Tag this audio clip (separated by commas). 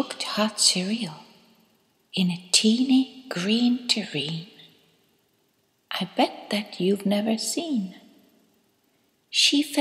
Speech